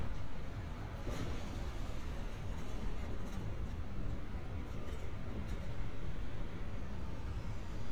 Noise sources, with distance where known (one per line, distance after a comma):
background noise